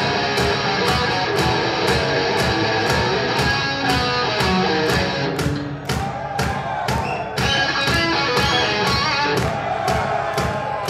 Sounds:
music
exciting music

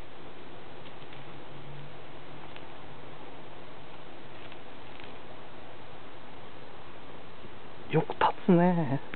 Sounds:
speech

